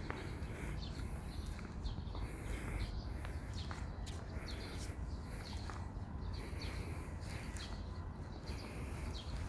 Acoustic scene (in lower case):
park